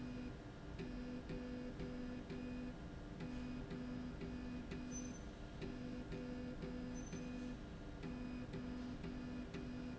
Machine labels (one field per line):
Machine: slide rail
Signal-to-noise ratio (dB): 6 dB